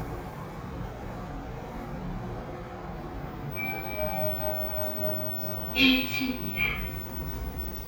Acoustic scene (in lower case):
elevator